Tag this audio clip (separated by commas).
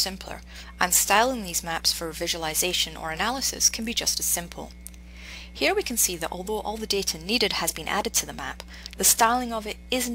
Speech